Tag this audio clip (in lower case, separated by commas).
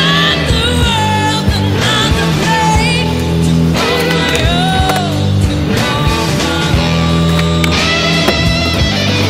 music, skateboard, grunge